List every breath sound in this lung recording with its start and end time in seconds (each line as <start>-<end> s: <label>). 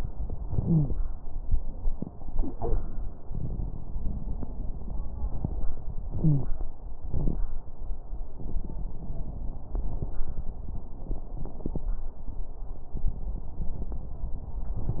0.59-0.91 s: wheeze
6.21-6.53 s: wheeze